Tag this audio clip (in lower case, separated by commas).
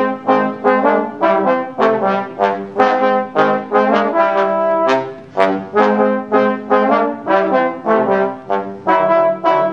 music